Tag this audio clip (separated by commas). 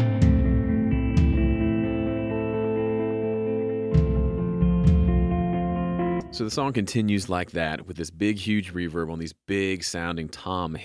Music, Speech